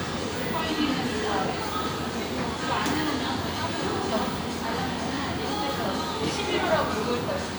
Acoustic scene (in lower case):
crowded indoor space